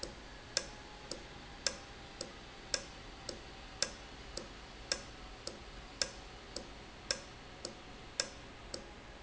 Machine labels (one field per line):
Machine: valve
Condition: normal